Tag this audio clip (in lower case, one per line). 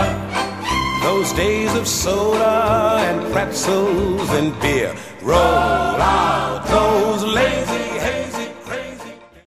music